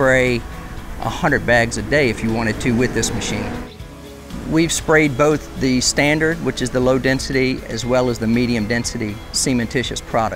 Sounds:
music, speech

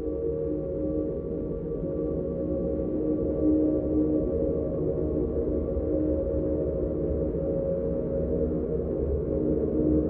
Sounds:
music, background music

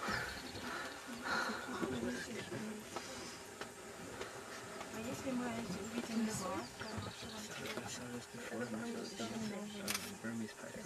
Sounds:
speech, outside, rural or natural, animal

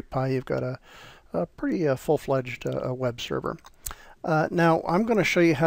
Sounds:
speech

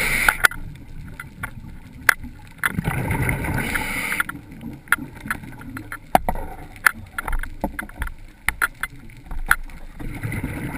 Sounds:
vehicle, water vehicle, canoe

